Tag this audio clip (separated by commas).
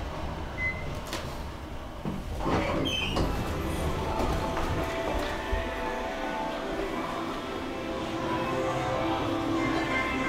Music